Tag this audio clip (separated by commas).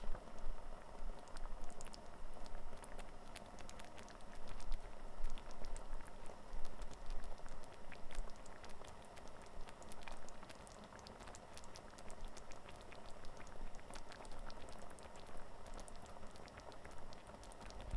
Boiling, Liquid